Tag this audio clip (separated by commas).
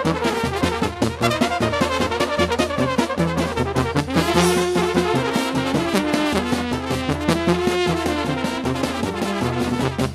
Trumpet, Brass instrument